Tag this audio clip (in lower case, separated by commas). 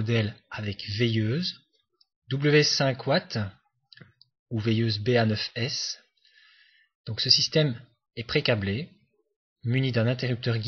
speech